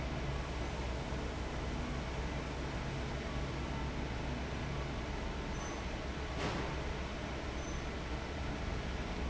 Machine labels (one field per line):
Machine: fan